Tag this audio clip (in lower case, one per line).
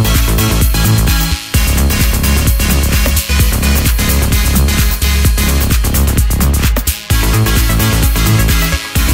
music